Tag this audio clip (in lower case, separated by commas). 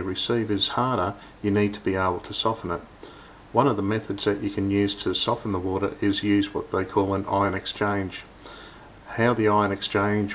speech